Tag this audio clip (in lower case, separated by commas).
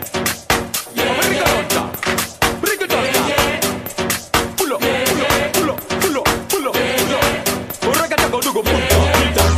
afrobeat, music